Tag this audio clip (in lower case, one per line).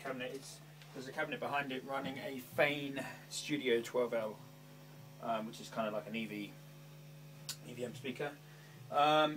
speech